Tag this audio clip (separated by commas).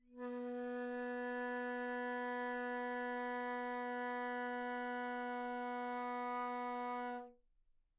Musical instrument, Wind instrument, Music